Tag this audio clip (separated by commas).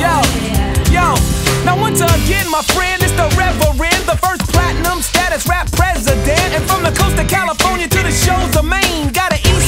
Music